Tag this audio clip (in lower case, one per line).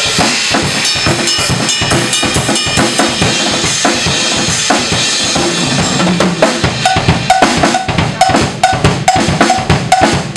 music
bass drum
drum
musical instrument
drum kit